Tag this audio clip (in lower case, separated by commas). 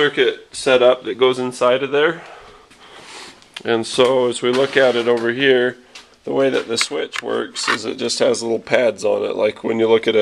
speech